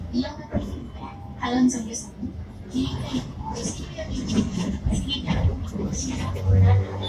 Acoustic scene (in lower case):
bus